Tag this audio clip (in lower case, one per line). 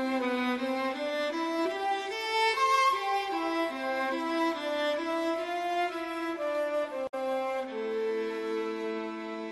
cello
bowed string instrument